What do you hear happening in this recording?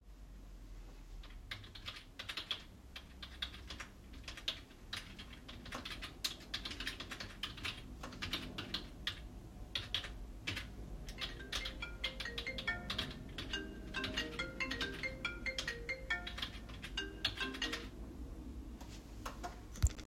I recorded this scene while holding the phone and moving slightly. Keyboard typing is audible first, and the phone starts ringing while typing is still ongoing. The two target events overlap in time.